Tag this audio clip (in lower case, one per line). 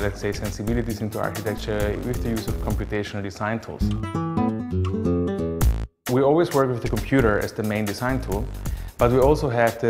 speech
music